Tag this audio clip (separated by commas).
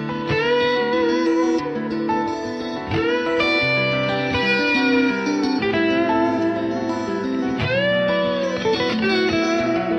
Music